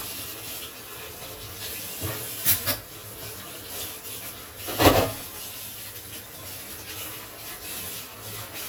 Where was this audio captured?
in a kitchen